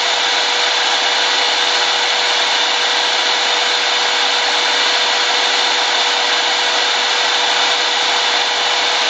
A drill drilling